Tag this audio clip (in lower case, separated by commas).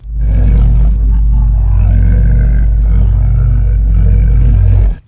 growling, animal